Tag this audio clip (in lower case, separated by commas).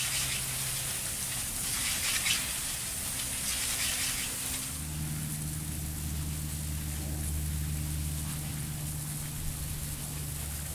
spray